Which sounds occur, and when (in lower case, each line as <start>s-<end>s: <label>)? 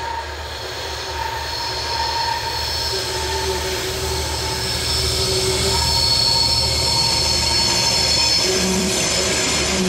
0.0s-9.8s: train
5.7s-8.6s: train wheels squealing